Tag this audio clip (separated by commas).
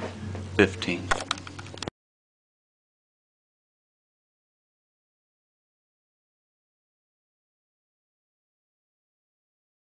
Speech